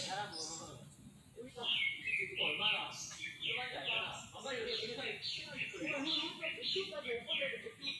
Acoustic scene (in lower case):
park